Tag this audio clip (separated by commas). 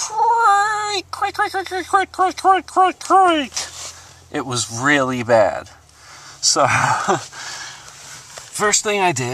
Speech